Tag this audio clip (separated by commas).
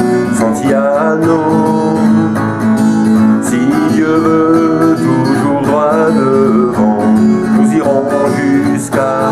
Music, Guitar, Musical instrument, Acoustic guitar